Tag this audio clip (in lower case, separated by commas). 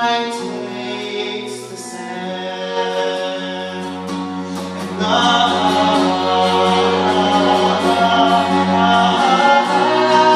violin, bowed string instrument, double bass, cello